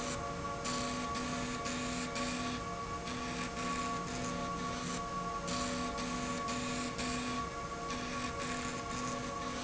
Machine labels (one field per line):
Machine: slide rail